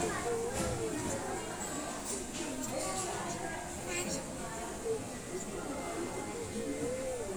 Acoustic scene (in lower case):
restaurant